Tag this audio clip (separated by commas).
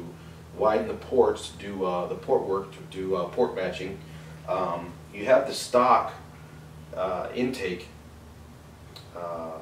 Speech